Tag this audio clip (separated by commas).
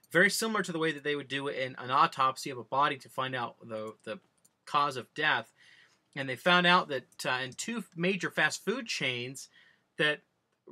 Speech